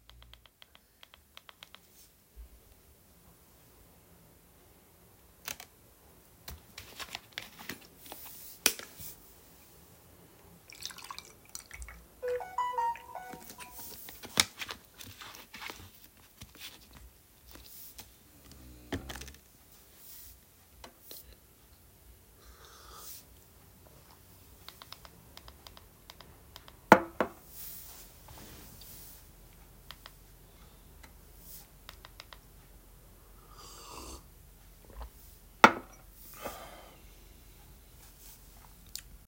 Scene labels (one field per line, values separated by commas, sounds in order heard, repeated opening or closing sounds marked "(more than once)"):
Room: living room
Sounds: phone ringing, cutlery and dishes